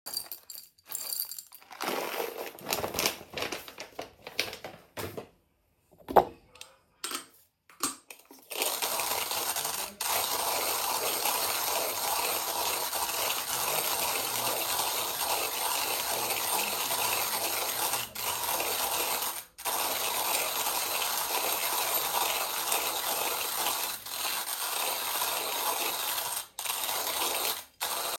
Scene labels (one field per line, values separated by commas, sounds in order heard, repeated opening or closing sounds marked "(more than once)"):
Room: kitchen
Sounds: coffee machine